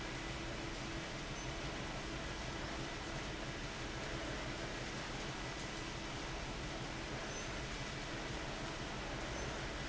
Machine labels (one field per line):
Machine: fan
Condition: abnormal